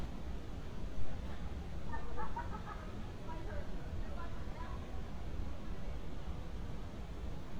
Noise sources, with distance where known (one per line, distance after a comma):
person or small group talking, far